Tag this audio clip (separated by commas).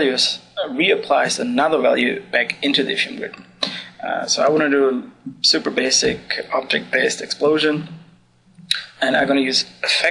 Speech